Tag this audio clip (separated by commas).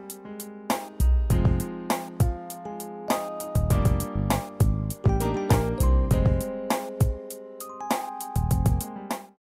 Music